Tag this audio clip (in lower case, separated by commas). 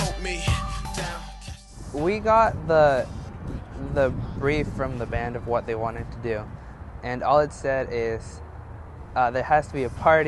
speech, music